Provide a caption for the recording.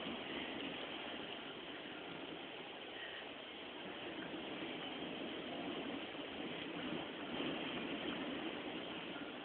Wind is blowing very hard